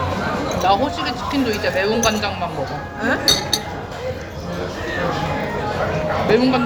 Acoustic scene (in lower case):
restaurant